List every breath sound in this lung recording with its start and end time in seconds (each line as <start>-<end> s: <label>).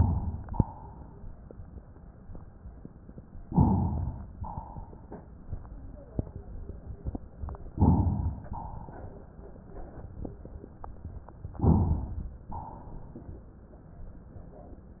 0.00-0.51 s: inhalation
0.51-1.35 s: exhalation
3.49-4.29 s: inhalation
4.37-5.29 s: exhalation
7.74-8.50 s: inhalation
8.50-9.22 s: exhalation
11.63-12.47 s: inhalation
12.54-13.38 s: exhalation